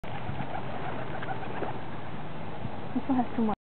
A bird is squawking and person speaks